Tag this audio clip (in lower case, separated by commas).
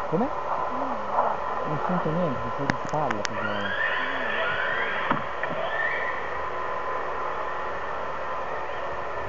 speech